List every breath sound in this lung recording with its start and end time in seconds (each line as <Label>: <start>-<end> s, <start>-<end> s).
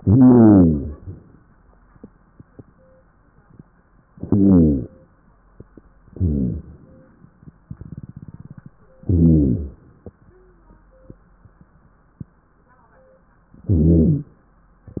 Inhalation: 4.11-5.12 s, 9.01-9.98 s
Exhalation: 0.00-1.36 s, 6.07-8.69 s, 13.63-14.32 s